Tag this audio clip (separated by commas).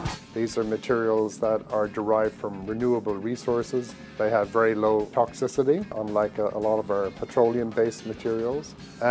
Music, Speech